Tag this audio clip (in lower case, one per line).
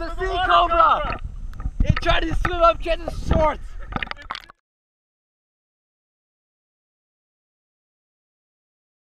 speech
outside, rural or natural
gurgling